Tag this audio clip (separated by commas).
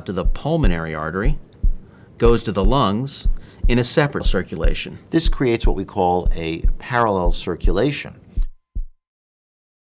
Speech